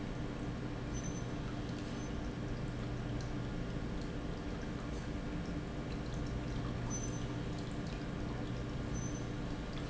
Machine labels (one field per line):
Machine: pump